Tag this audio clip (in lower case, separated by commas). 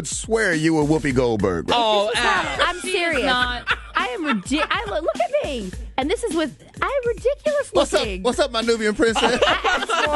music, speech